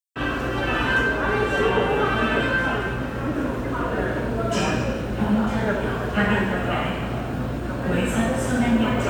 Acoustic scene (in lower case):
subway station